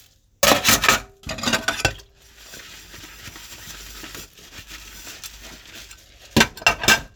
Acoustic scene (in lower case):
kitchen